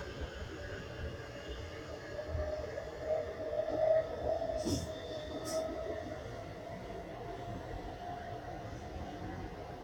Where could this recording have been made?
on a subway train